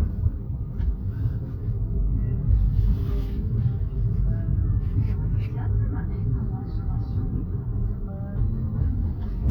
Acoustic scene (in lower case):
car